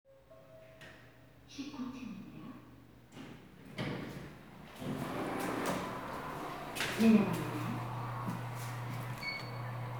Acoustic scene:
elevator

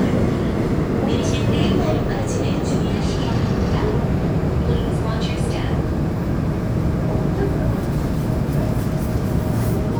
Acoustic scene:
subway train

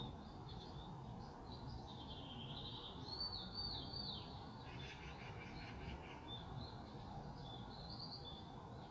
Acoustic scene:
park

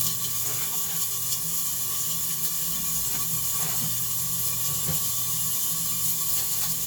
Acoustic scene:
kitchen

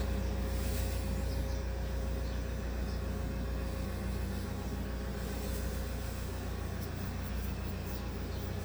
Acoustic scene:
car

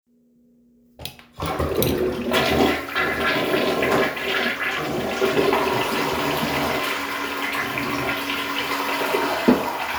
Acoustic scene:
restroom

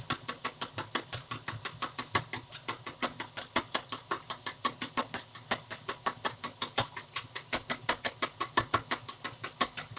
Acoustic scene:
kitchen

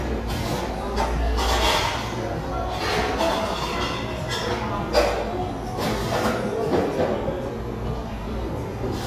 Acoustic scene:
cafe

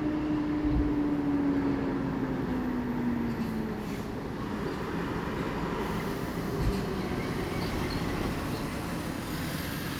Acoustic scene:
residential area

